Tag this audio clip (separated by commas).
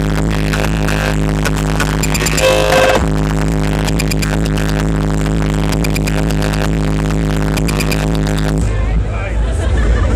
Music, Speech